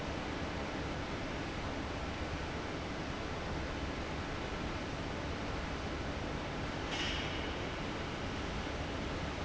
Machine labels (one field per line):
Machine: fan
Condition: abnormal